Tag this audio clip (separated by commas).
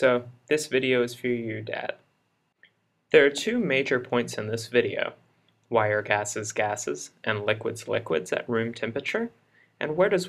Speech